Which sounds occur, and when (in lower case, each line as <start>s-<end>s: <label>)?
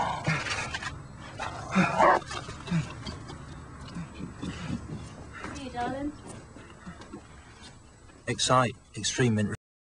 0.0s-9.4s: mechanisms
0.2s-0.9s: generic impact sounds
0.2s-0.7s: breathing
1.4s-3.9s: growling
1.7s-1.9s: breathing
2.6s-2.9s: breathing
3.8s-6.0s: run
3.9s-4.1s: breathing
5.3s-5.6s: breathing
5.3s-6.1s: woman speaking
6.1s-7.1s: run
6.5s-7.0s: breathing
7.5s-7.7s: human sounds
8.2s-9.4s: male speech